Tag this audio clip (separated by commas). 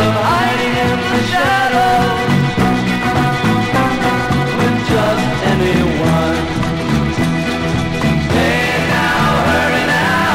Psychedelic rock